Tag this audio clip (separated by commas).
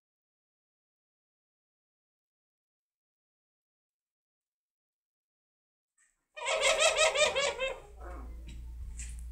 Pigeon, Domestic animals, Bird